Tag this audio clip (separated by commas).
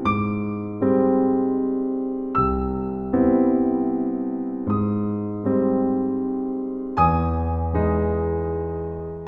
Tender music, Music